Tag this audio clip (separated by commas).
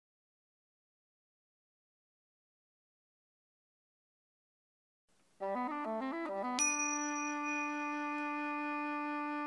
Music, Speech, Ding-dong